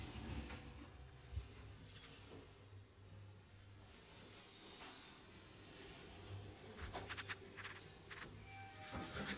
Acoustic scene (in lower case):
elevator